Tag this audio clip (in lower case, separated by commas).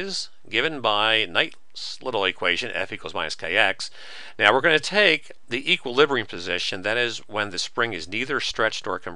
speech